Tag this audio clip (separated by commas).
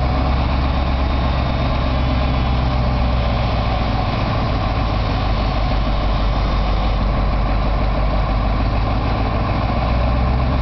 Vehicle, Truck, Heavy engine (low frequency)